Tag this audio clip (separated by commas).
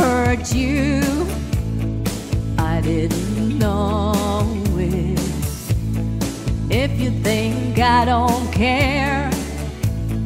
Music, Female singing